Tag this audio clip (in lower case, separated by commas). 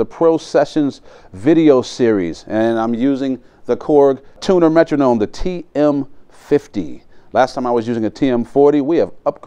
speech